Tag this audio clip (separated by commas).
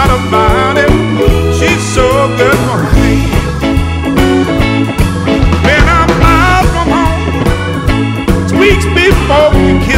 Music